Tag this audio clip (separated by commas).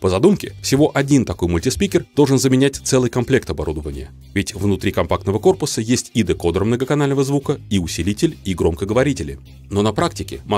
Speech, Music